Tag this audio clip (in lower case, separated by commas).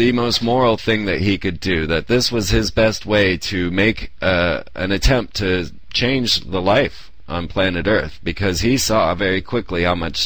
speech